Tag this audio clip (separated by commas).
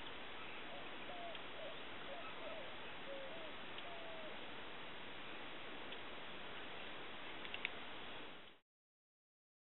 Animal